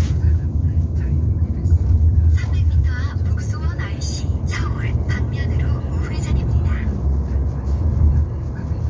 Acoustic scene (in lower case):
car